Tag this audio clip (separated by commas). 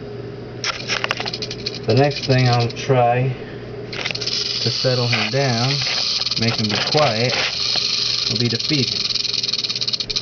Snake, Animal, Speech